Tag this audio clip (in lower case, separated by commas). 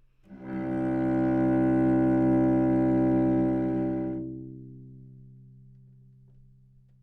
music, bowed string instrument, musical instrument